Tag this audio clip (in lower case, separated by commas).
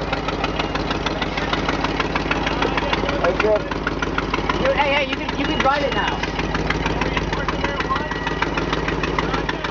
vehicle, truck, speech